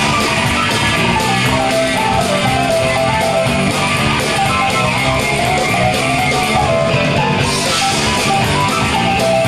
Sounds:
music

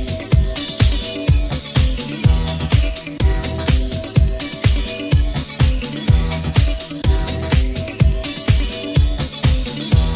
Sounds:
electronic music, music

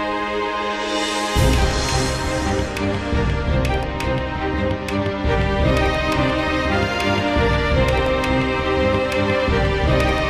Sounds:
music

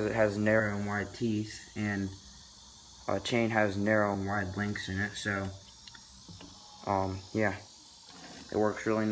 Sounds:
speech, vehicle, bicycle

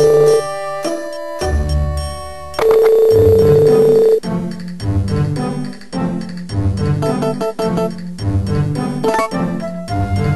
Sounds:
music

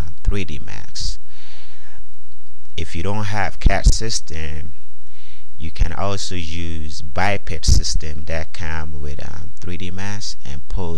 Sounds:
speech

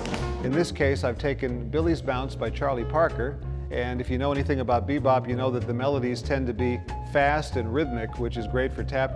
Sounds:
music, tap, speech

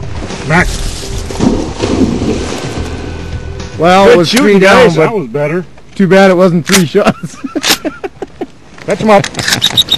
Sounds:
speech

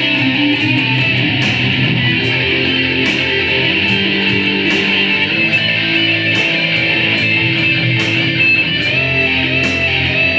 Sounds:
music, guitar, musical instrument

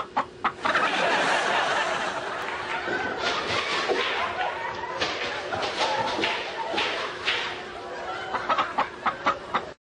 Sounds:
rooster, fowl, cluck

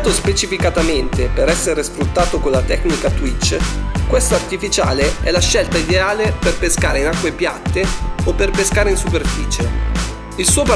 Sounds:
music, speech

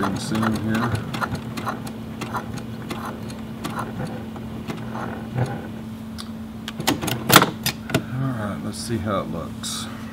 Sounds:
sewing machine, speech

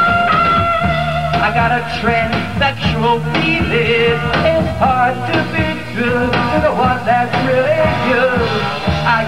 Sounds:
singing, music, rock and roll

